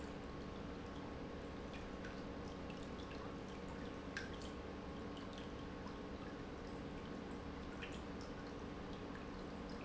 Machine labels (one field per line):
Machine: pump